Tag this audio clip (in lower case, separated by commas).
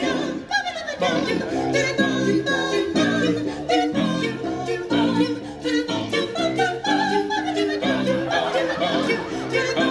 music, choir